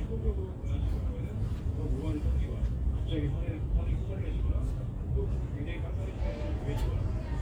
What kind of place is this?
crowded indoor space